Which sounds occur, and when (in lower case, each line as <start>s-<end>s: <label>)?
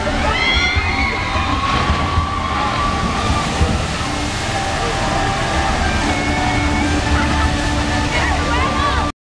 0.0s-9.1s: music
0.0s-9.1s: mechanisms
0.0s-9.1s: water
0.2s-3.5s: shout
1.0s-2.0s: man speaking
1.6s-4.8s: splash
2.4s-2.8s: human voice
4.8s-5.1s: man speaking
7.1s-7.6s: speech
8.1s-9.0s: speech